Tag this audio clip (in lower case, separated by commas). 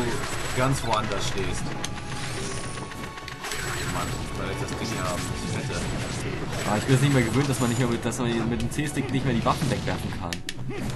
music, speech